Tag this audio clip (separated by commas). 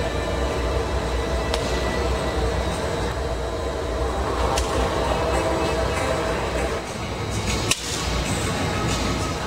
Music